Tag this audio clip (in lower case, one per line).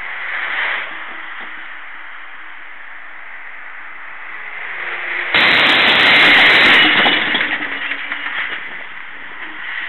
vehicle